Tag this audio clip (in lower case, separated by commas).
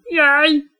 human voice, speech